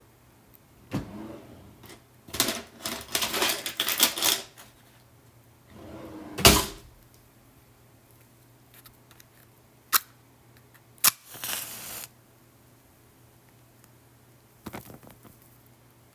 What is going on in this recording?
I opened a drawer to pick something out, closed it again and lit a match.